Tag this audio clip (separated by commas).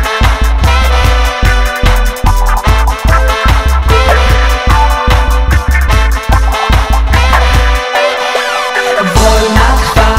Music, Sound effect